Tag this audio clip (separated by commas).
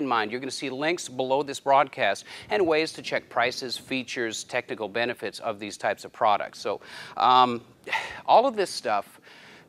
Speech